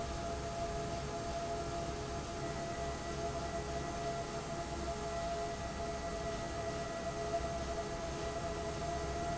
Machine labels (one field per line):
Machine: fan